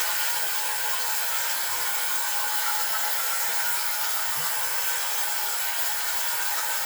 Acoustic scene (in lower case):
restroom